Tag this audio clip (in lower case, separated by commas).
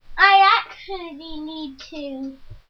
child speech, speech, human voice